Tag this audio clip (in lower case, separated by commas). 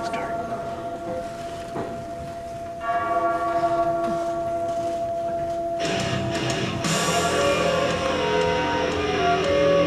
music, flute